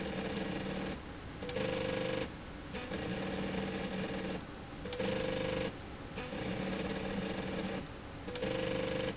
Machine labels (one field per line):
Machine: slide rail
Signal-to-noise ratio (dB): 0 dB